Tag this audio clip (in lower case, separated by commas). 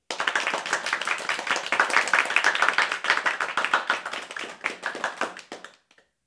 human group actions, applause